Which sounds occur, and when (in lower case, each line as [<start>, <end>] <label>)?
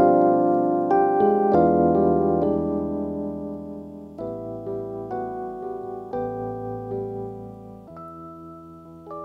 [0.01, 9.24] music